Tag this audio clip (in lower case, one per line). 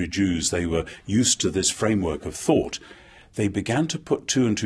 speech